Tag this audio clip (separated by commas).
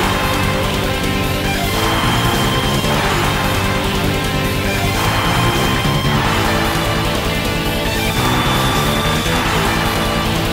Bass guitar, Guitar